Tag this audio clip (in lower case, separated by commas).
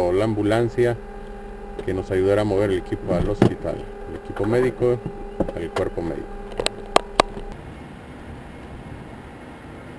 speech, vehicle